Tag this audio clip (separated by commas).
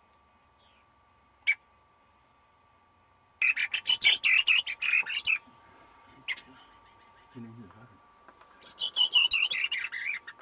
wood thrush calling